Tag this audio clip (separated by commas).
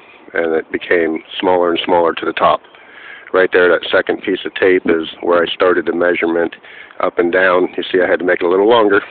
Speech